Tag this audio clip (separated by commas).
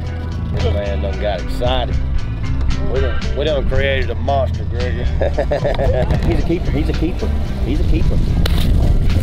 Music, Speech